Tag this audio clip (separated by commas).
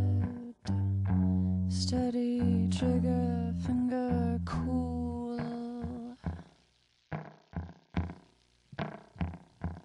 Music